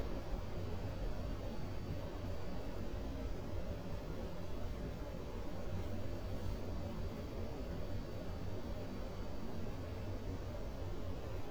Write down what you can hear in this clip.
background noise